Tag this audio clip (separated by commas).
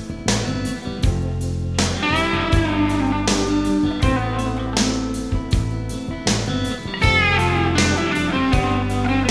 Music